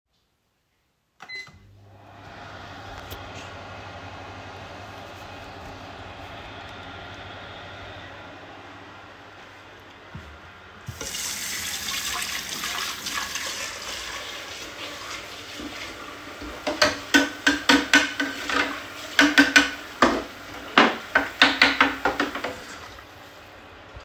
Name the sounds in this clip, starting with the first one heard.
microwave, running water, cutlery and dishes